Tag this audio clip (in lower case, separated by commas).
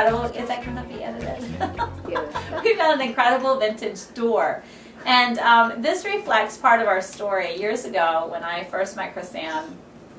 speech